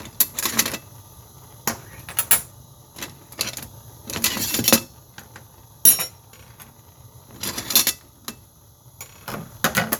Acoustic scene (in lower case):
kitchen